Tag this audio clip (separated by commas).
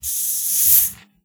Hiss